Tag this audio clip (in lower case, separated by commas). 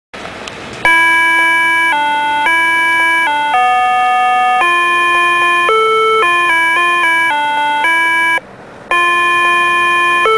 music